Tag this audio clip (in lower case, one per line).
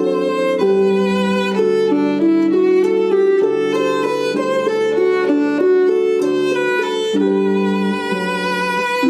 music
violin
musical instrument